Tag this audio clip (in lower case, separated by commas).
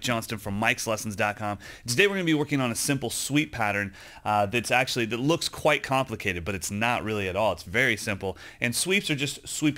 speech